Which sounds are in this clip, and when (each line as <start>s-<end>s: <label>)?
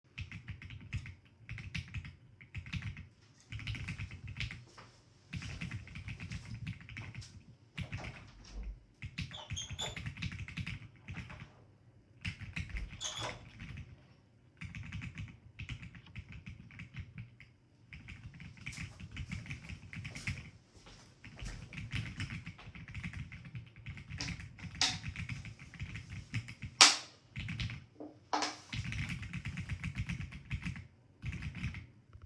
0.1s-32.3s: keyboard typing
3.6s-8.6s: footsteps
7.7s-11.5s: door
12.1s-13.7s: door
18.5s-23.6s: footsteps